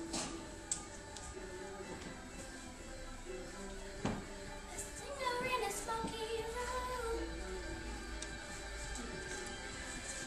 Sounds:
child singing, music

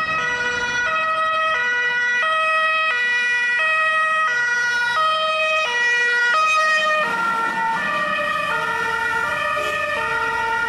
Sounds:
siren, ambulance (siren), emergency vehicle

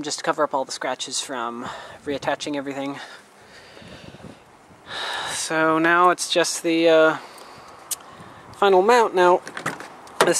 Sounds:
speech

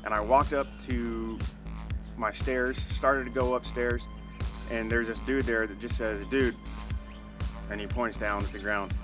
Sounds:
music, man speaking, speech

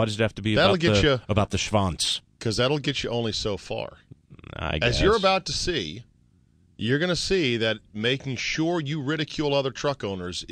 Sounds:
speech

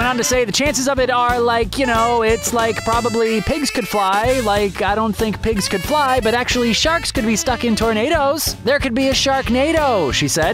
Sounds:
speech, music

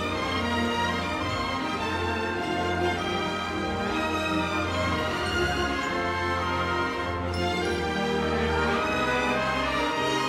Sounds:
music

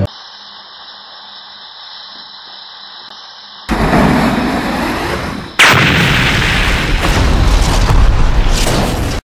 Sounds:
burst, explosion

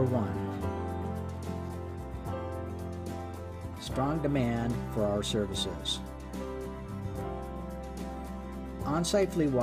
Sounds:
music, speech

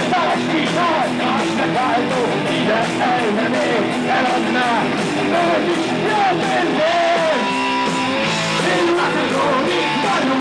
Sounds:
heavy metal, music

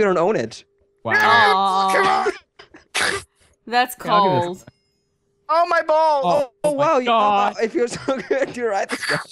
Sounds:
speech

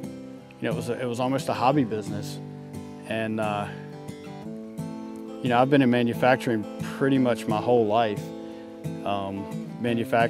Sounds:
speech, music

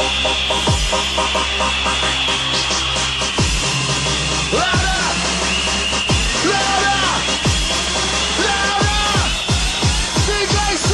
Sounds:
music

